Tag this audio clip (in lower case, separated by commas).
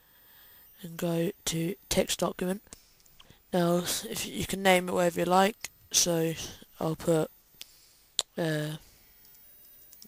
speech